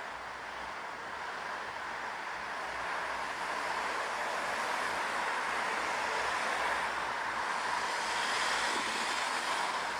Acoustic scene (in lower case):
street